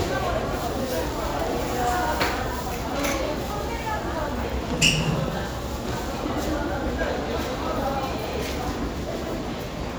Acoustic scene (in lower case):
crowded indoor space